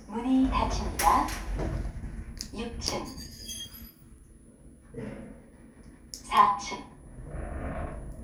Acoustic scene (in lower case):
elevator